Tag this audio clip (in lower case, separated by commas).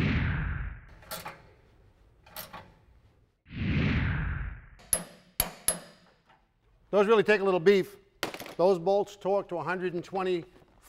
speech, inside a small room